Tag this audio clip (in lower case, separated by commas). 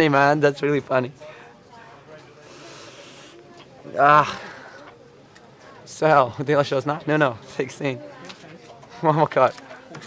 speech